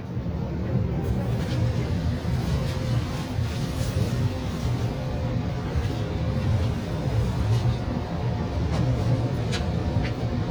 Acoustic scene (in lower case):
subway train